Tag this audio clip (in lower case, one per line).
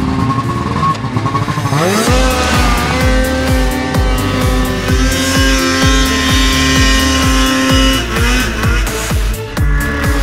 driving snowmobile